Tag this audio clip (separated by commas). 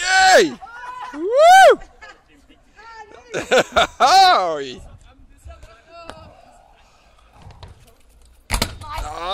Speech